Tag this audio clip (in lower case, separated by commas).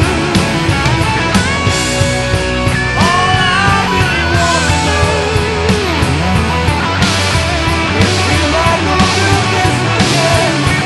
music, rock music, punk rock